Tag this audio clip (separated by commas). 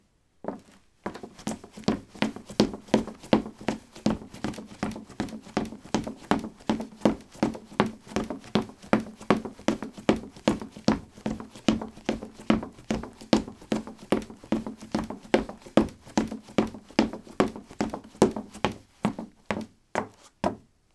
Run